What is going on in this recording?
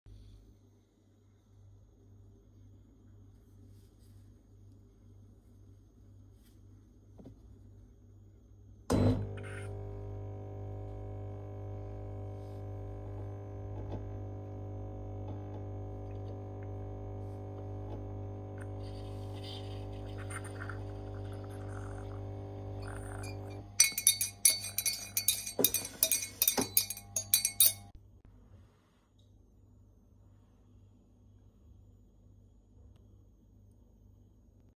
I put the phone on the counter and waited for 7 seconds. Then I turned on the coffee machine and stirred a spoon in my cup.